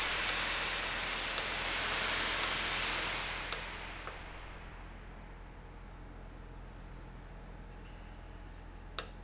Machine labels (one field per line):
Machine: valve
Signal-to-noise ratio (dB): -6 dB